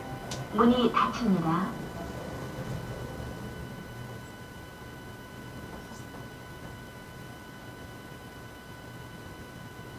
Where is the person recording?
in an elevator